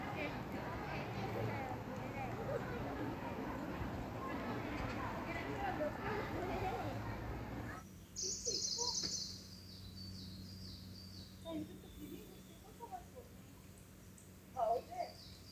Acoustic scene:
park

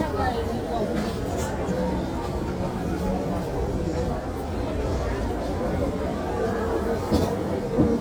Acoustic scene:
crowded indoor space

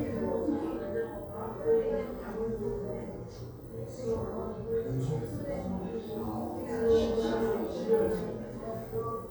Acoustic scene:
crowded indoor space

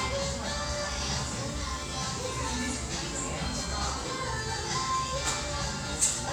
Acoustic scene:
restaurant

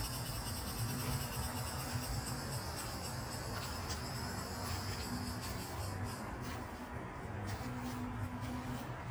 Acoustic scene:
park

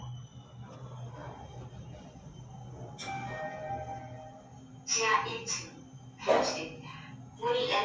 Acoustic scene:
elevator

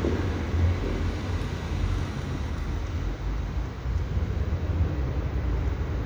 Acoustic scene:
residential area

